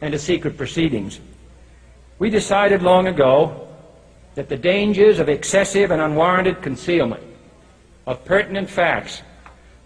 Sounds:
speech
narration
male speech

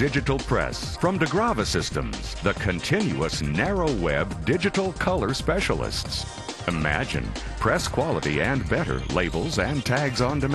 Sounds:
speech
music

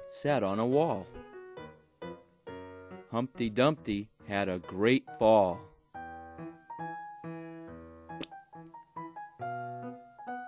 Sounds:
music
speech

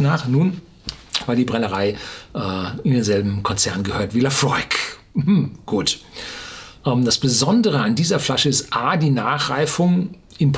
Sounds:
speech

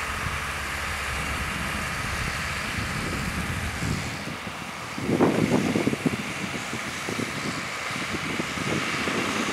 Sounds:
crackle

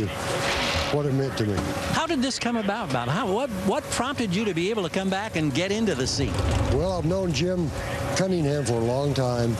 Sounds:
speech

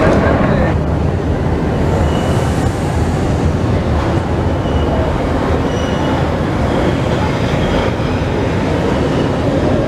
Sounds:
underground

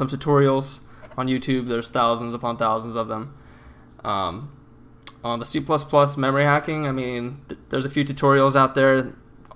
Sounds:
speech

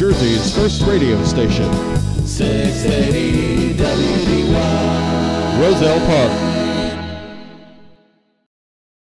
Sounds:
speech
radio
music

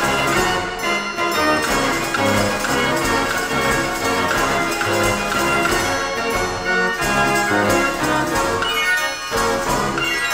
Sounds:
jingle bell
organ

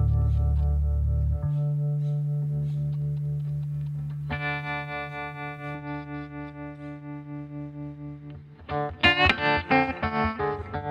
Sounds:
music

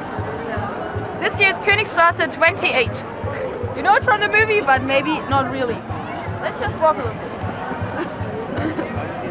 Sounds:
speech

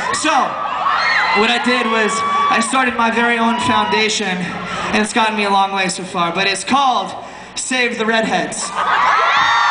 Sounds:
narration
speech
man speaking

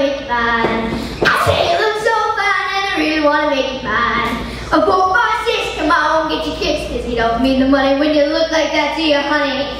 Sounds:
child singing

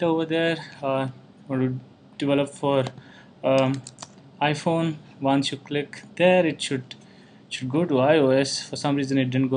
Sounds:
speech

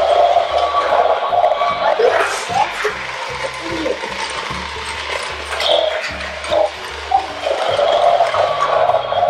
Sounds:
dinosaurs bellowing

